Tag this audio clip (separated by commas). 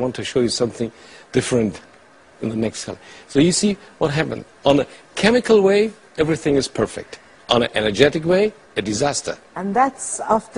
Speech